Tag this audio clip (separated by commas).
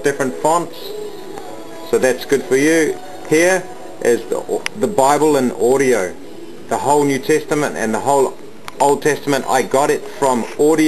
Music, Speech